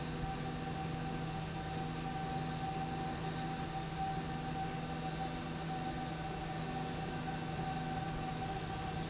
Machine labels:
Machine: slide rail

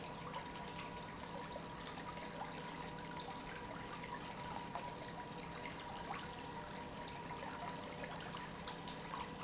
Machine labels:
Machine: pump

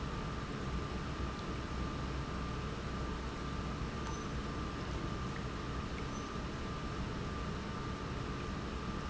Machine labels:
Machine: pump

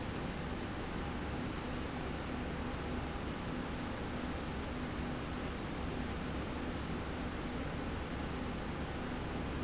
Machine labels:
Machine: slide rail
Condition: normal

